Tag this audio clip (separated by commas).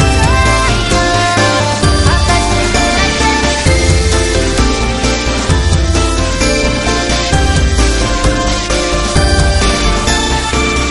Music